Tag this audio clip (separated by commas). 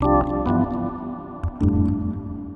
Music, Organ, Keyboard (musical), Musical instrument